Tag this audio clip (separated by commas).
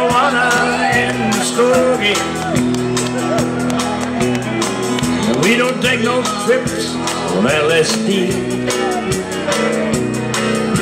Music, Psychedelic rock